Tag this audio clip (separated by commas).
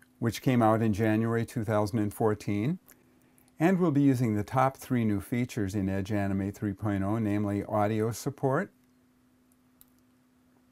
Speech